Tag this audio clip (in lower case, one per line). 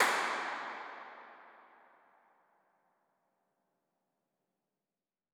hands
clapping